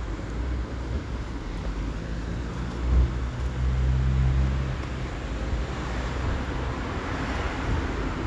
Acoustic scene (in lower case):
street